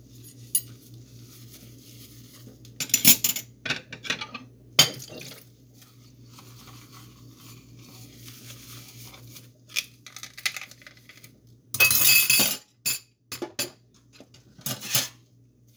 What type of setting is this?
kitchen